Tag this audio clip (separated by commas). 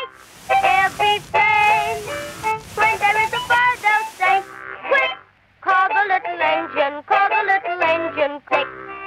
Speech, Music